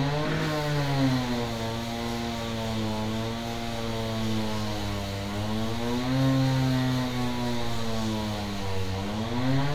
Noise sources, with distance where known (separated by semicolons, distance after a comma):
large rotating saw, near